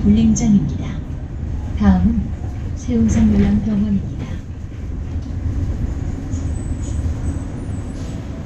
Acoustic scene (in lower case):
bus